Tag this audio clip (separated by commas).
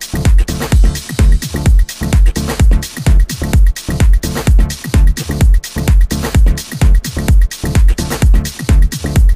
Music, Funny music